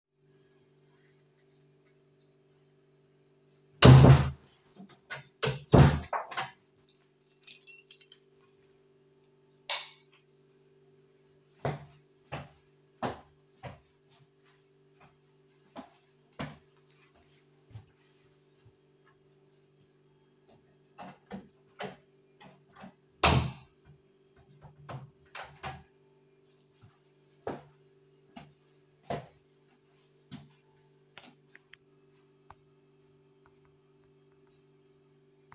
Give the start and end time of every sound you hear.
3.7s-6.7s: door
6.9s-8.3s: keys
9.4s-10.4s: light switch
11.5s-17.6s: footsteps
20.8s-26.0s: door
27.4s-31.6s: footsteps

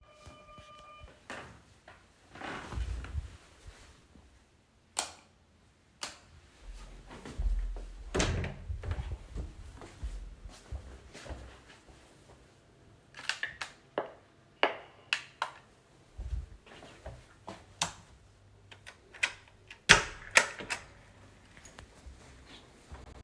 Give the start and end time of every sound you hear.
0.0s-1.2s: bell ringing
4.9s-5.2s: light switch
6.0s-6.2s: light switch
6.6s-11.6s: footsteps
8.1s-9.2s: door
16.7s-17.7s: footsteps
17.8s-18.0s: light switch
19.1s-20.9s: door

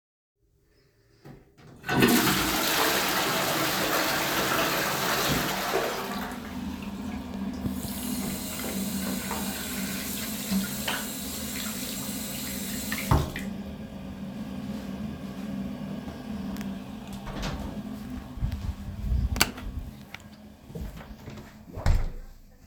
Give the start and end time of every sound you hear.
1.8s-6.6s: toilet flushing
7.7s-13.3s: running water
17.3s-17.8s: door
19.3s-19.6s: light switch
21.6s-22.4s: door

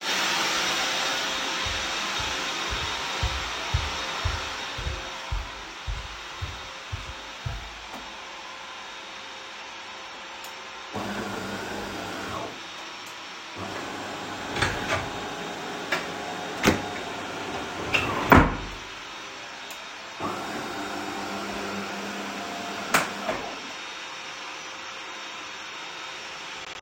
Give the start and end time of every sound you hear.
0.0s-26.8s: vacuum cleaner
1.7s-7.8s: footsteps
10.9s-12.5s: coffee machine
13.5s-18.7s: coffee machine
14.4s-15.2s: wardrobe or drawer
16.6s-16.9s: wardrobe or drawer
17.9s-18.7s: wardrobe or drawer
20.1s-23.6s: coffee machine

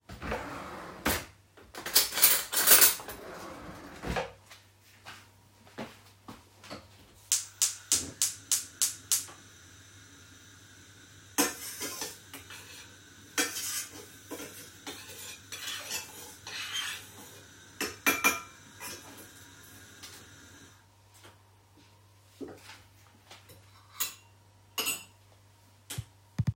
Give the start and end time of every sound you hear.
0.0s-1.5s: wardrobe or drawer
1.5s-3.1s: cutlery and dishes
3.1s-4.7s: wardrobe or drawer
4.7s-7.2s: footsteps
11.3s-19.0s: cutlery and dishes
23.9s-26.1s: cutlery and dishes

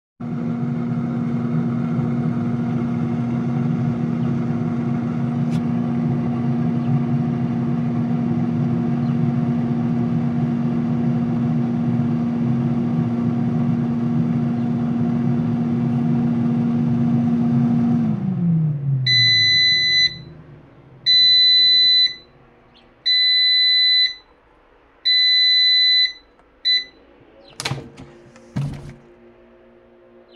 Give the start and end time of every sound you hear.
0.1s-29.0s: microwave

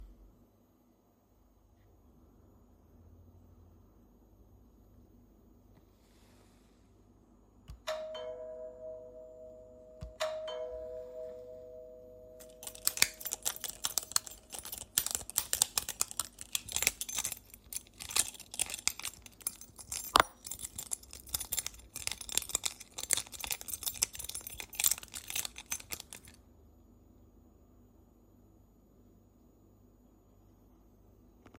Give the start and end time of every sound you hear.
7.4s-11.6s: bell ringing
12.3s-26.4s: keys

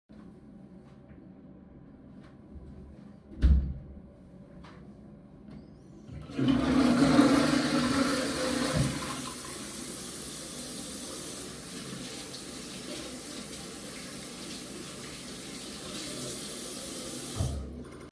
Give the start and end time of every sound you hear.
3.3s-3.9s: door
6.1s-9.2s: toilet flushing
8.7s-18.0s: running water

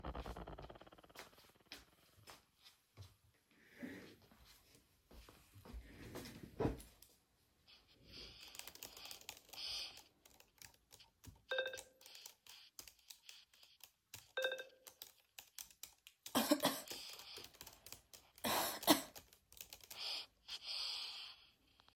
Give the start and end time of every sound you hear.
8.4s-20.0s: keyboard typing
11.5s-11.9s: phone ringing
14.3s-14.8s: phone ringing

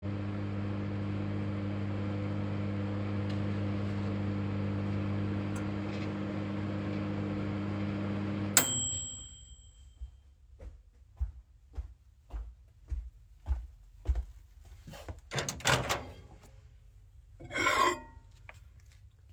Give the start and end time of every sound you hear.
0.0s-10.2s: microwave
10.2s-14.4s: footsteps
15.3s-16.2s: microwave
17.4s-18.4s: cutlery and dishes

